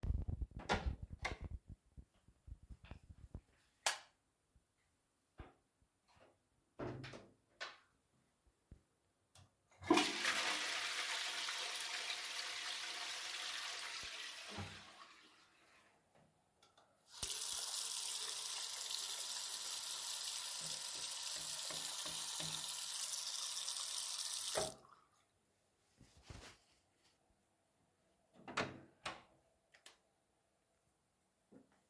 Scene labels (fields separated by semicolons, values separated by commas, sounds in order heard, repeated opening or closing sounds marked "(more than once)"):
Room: bathroom; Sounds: door (more than once), light switch, toilet flushing, running water